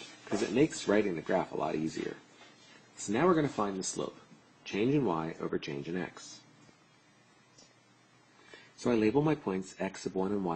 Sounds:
speech

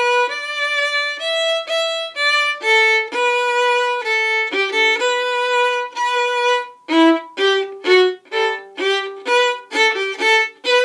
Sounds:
musical instrument, music, fiddle

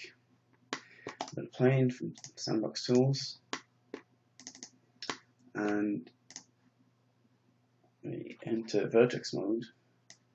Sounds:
speech

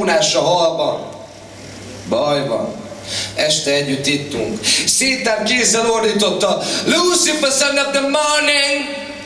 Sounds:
speech

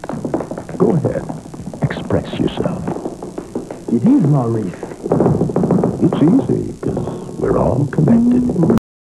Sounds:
speech

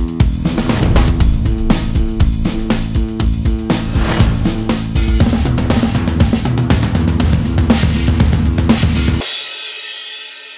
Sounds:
drum, music, drum kit, musical instrument

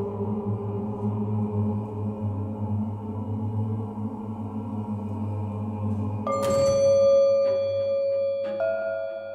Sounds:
soundtrack music, music, electronic music

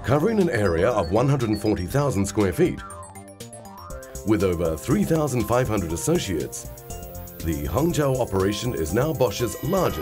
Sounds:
music, speech

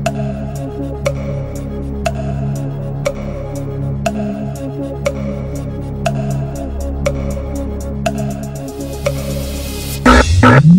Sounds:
music, tick-tock

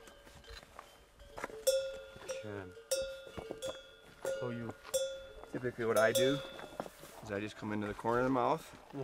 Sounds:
speech

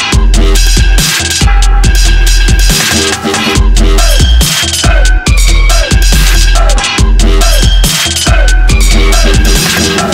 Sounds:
music, electronic music, drum and bass

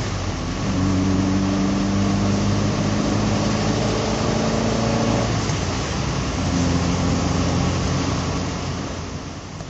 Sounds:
vroom, engine, medium engine (mid frequency), vehicle, car

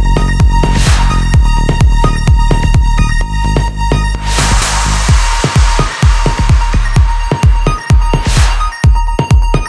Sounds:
trance music

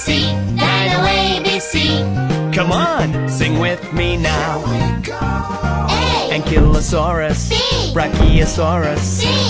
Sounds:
music for children, music, speech

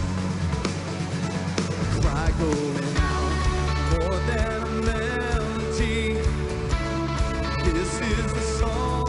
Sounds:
music

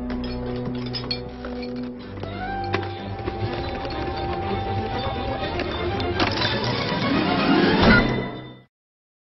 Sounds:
music

